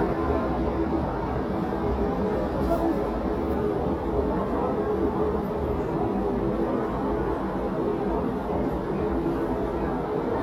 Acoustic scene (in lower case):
crowded indoor space